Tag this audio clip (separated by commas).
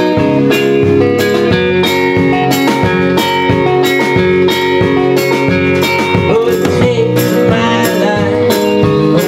Music